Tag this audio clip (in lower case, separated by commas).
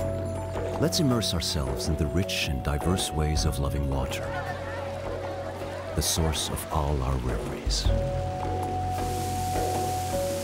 waterfall, music, stream, speech